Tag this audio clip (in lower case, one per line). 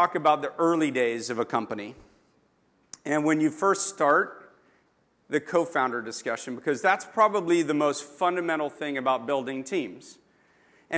speech